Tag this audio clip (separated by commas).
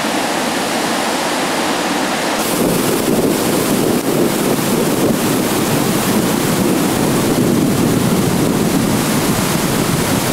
Boat, canoe, Vehicle, Waterfall